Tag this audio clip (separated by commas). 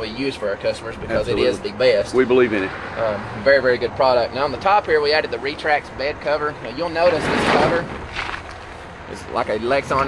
Speech